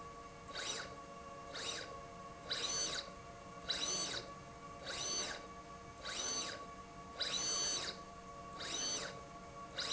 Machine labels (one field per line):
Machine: slide rail